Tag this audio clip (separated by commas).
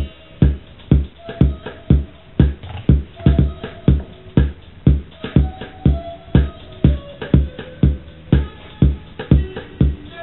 Electronic music, House music, Music, Musical instrument